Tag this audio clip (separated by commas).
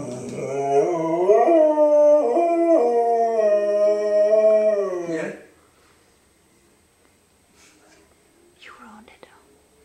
Speech